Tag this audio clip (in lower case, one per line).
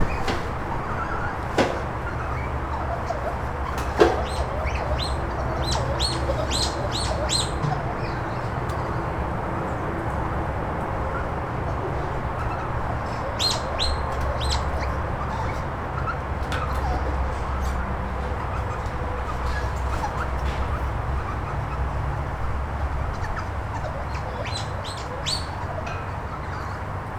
squeak